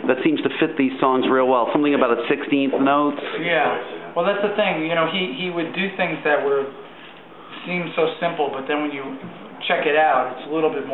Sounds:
inside a small room, Speech

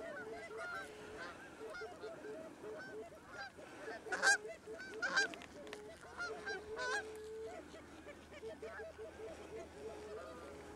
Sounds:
Honk

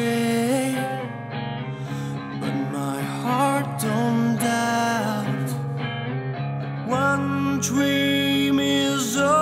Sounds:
Music

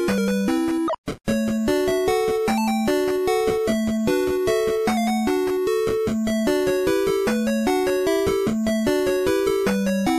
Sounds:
Music

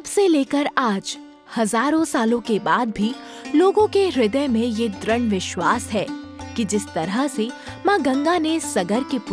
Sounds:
Sitar, Music, Speech

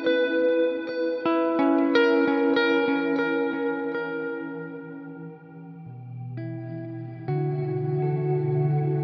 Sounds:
Music

